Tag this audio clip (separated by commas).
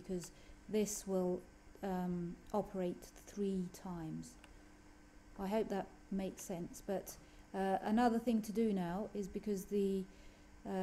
Speech